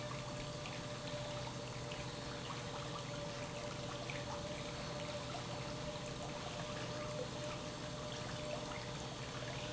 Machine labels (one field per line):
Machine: pump